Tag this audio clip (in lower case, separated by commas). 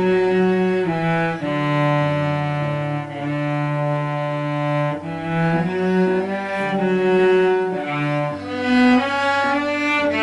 musical instrument, music, cello